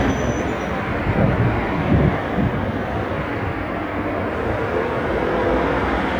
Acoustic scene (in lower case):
street